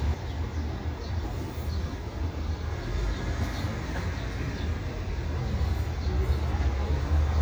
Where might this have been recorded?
in a residential area